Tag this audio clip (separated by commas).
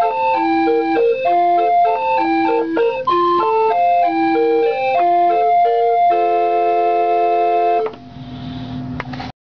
Music